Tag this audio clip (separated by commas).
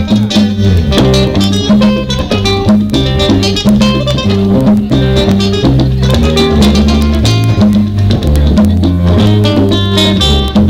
Guitar, Flamenco, Music